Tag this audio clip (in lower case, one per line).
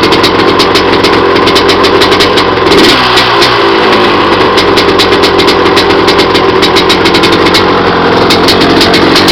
outside, urban or man-made
motorcycle
vehicle